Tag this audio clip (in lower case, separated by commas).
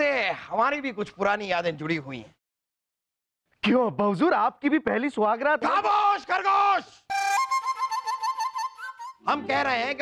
music, speech